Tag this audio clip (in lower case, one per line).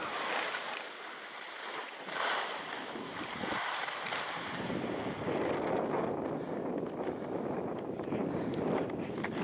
skiing